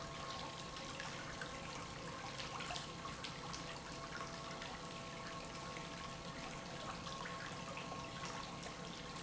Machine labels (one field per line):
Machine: pump